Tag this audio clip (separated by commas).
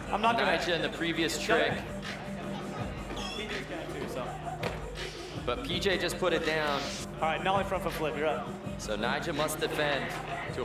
Music, Speech